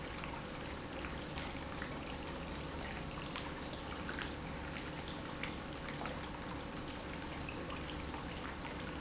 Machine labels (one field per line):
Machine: pump